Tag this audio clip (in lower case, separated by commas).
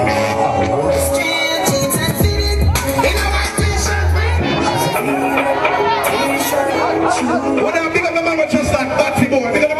music, speech